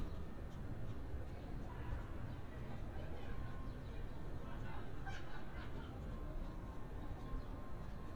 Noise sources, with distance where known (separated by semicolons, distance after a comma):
person or small group talking, far